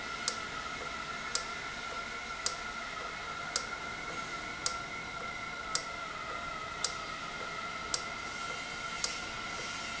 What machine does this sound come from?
valve